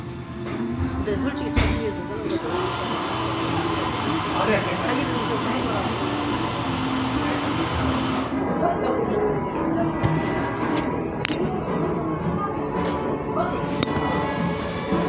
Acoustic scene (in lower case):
cafe